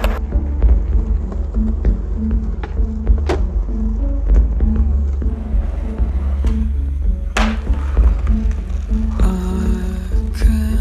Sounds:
music

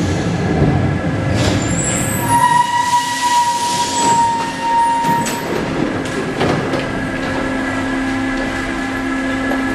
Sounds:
metro

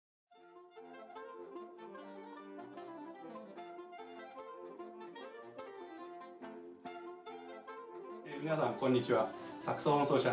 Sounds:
music, speech

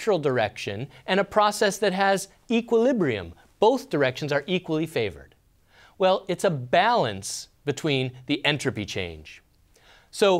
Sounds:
speech

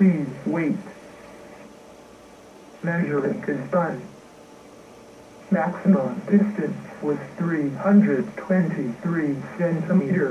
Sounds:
radio, speech

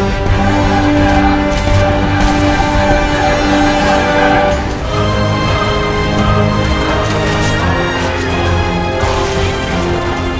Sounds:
music

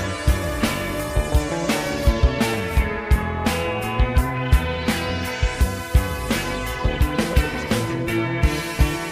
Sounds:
music, musical instrument, plucked string instrument, acoustic guitar, strum, electric guitar, guitar

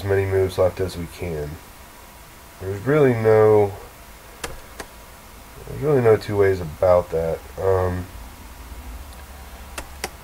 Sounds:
speech

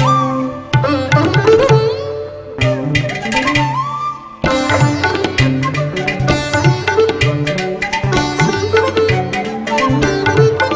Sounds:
playing sitar

